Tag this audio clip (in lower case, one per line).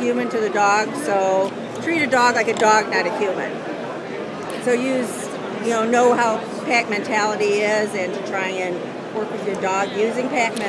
speech